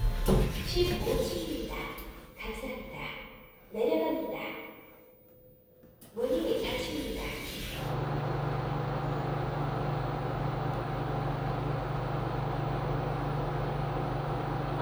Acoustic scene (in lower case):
elevator